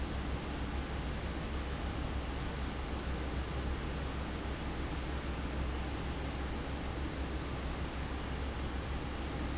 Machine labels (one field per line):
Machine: fan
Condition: abnormal